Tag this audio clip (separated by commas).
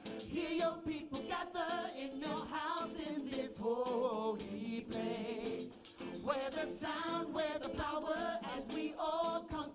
Music